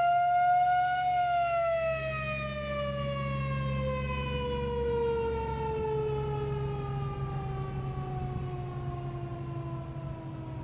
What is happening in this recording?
Siren starting loudly then tailing off